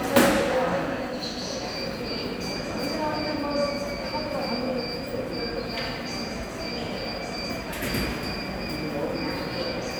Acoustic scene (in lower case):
subway station